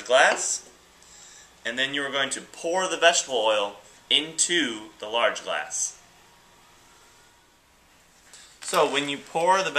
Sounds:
Speech

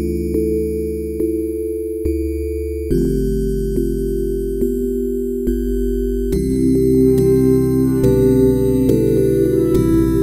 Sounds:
Music

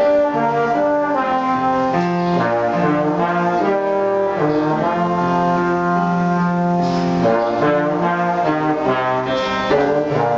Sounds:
playing trombone

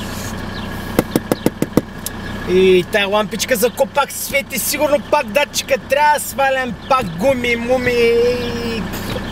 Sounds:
Car, Vehicle, Speech

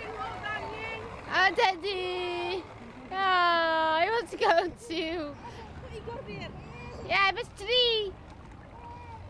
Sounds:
Speech

